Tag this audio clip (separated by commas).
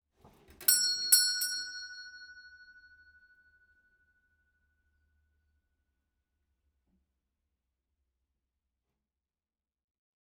Doorbell, Door, Alarm, home sounds